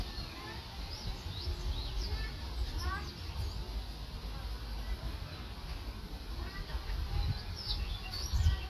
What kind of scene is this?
park